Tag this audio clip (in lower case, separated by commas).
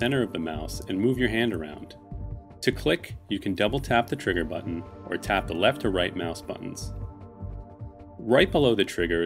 speech, music